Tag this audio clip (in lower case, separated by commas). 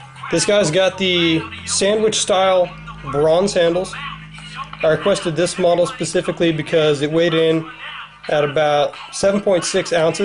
speech, music